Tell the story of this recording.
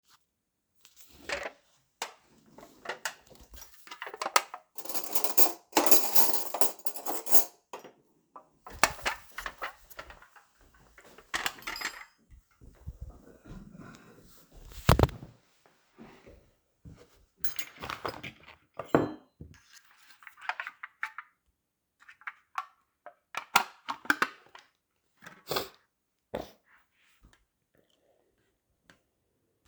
I grabbed a yoghurt cup opened the drawer to grab a spoon. walked over to the table and opened it, while I sniffle.